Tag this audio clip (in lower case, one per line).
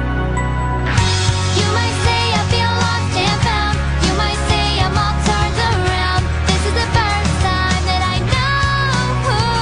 music